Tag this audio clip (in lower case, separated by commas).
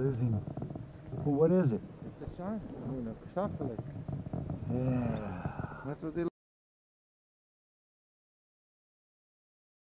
speech